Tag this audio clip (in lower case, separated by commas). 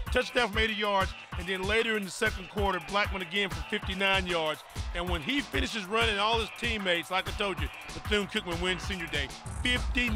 speech, music